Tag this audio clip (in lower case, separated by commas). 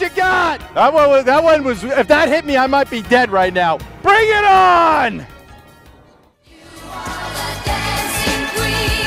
speech, music